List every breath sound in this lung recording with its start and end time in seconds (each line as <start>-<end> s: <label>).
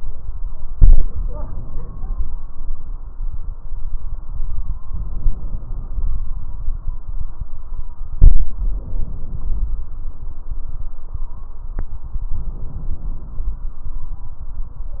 1.05-2.43 s: inhalation
1.53-2.41 s: stridor
4.84-6.22 s: inhalation
8.57-9.90 s: inhalation
12.40-13.72 s: inhalation